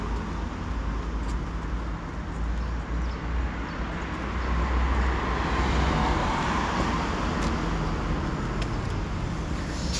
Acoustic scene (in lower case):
street